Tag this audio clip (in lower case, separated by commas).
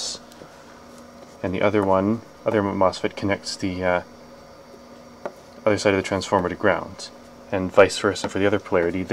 speech